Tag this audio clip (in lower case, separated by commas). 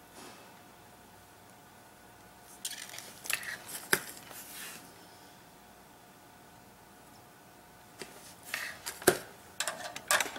inside a small room